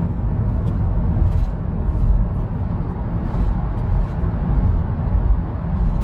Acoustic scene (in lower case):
car